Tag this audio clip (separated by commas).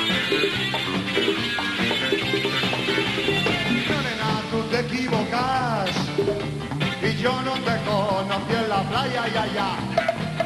Music